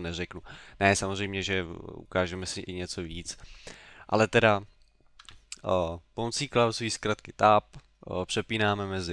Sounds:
Speech

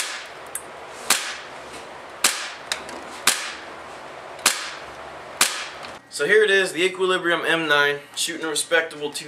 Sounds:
Speech, inside a small room

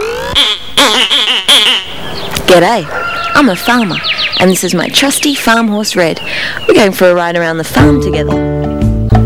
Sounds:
Music for children, Sheep

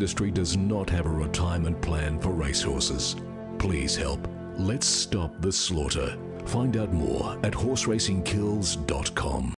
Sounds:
Speech, Music

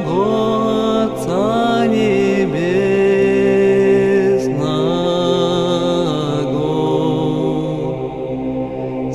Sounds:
Mantra, Music

